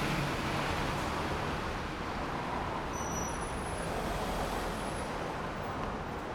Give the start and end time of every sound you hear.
[0.00, 2.00] car engine accelerating
[0.00, 6.34] car
[0.00, 6.34] car wheels rolling

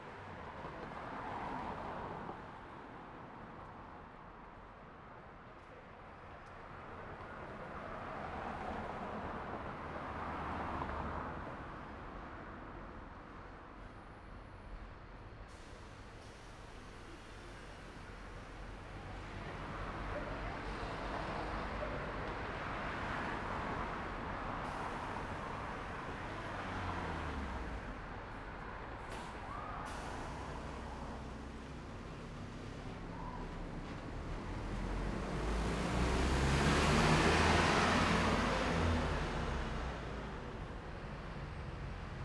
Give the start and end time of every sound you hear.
[0.00, 3.84] car
[0.00, 3.84] car wheels rolling
[6.72, 13.44] car
[6.72, 13.44] car wheels rolling
[14.40, 19.20] bus
[14.40, 19.20] bus compressor
[19.20, 33.60] car
[19.20, 33.60] car wheels rolling
[19.99, 21.96] people talking
[20.35, 21.75] car engine accelerating
[24.53, 28.10] bus compressor
[24.53, 40.12] bus
[28.15, 32.75] bus engine idling
[28.80, 29.60] bus compressor
[28.99, 29.71] people talking
[29.65, 32.75] bus compressor
[32.75, 40.12] bus engine accelerating
[37.55, 38.65] bus compressor

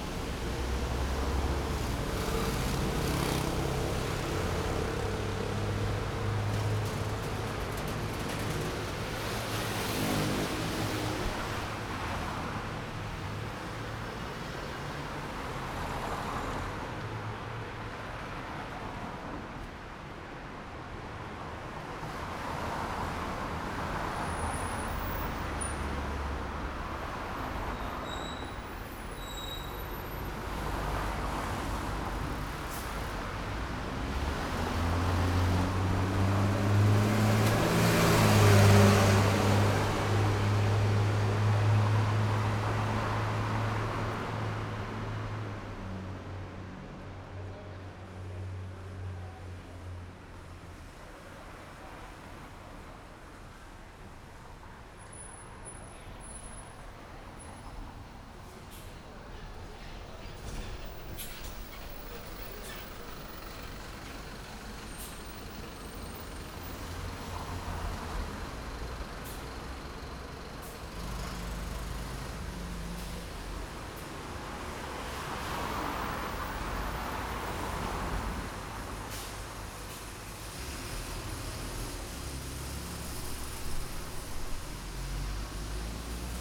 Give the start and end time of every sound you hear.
[0.00, 1.04] bus
[0.00, 1.04] bus engine accelerating
[0.94, 34.92] car
[0.94, 34.92] car wheels rolling
[1.20, 6.27] motorcycle
[1.20, 6.27] motorcycle engine accelerating
[9.07, 12.12] motorcycle
[9.07, 12.12] motorcycle engine accelerating
[15.43, 16.73] car engine accelerating
[24.01, 48.18] bus
[24.03, 30.11] bus brakes
[30.63, 34.18] car engine accelerating
[32.33, 32.81] bus compressor
[32.83, 48.18] bus engine accelerating
[41.03, 45.71] car
[41.03, 45.71] car wheels rolling
[47.48, 48.66] people talking
[50.12, 57.74] car
[50.12, 57.74] car wheels rolling
[54.93, 67.83] bus brakes
[54.93, 86.41] bus
[58.13, 58.93] bus compressor
[58.38, 64.18] bus wheels rolling
[60.93, 61.73] bus compressor
[61.71, 70.78] bus engine idling
[62.46, 63.08] bus compressor
[64.71, 65.18] bus compressor
[65.86, 69.46] car
[65.86, 69.46] car wheels rolling
[69.01, 69.53] bus compressor
[70.48, 70.83] bus compressor
[70.81, 73.53] bus engine accelerating
[72.81, 73.18] bus compressor
[73.20, 80.57] car
[73.20, 80.57] car wheels rolling
[73.54, 80.17] bus engine idling
[73.63, 74.08] bus compressor
[75.33, 78.38] bus brakes
[78.96, 79.41] bus compressor
[79.66, 80.11] bus compressor
[80.13, 86.41] bus engine accelerating
[86.04, 86.41] unclassified sound

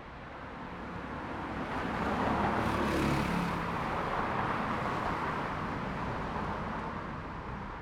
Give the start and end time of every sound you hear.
[0.30, 7.82] car
[0.30, 7.82] car wheels rolling
[0.39, 5.21] motorcycle
[0.39, 5.21] motorcycle engine accelerating

